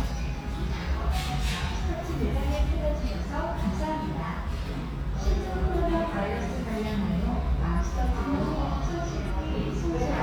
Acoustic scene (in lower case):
restaurant